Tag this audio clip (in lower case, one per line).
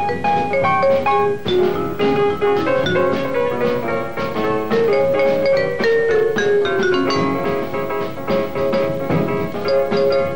playing vibraphone